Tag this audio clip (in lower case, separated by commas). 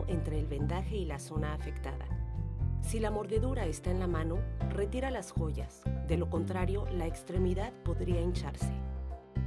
speech, music